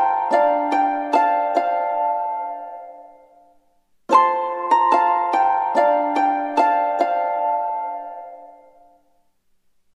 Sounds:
Music

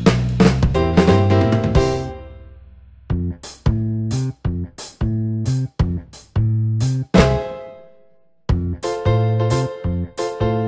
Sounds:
Music

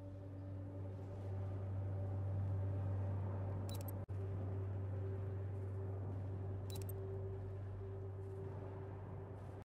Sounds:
Music

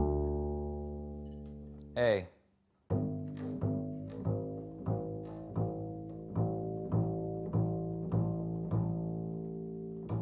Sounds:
playing double bass

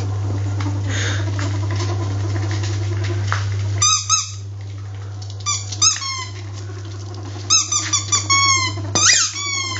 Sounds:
ferret dooking

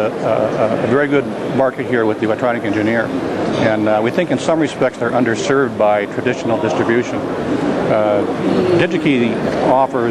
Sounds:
Speech

